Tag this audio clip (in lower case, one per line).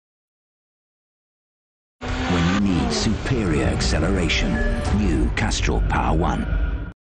speech
engine
vehicle